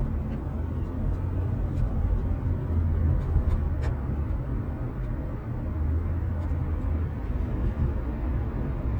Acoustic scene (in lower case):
car